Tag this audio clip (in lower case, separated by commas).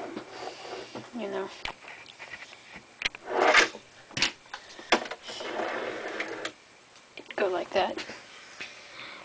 inside a small room, speech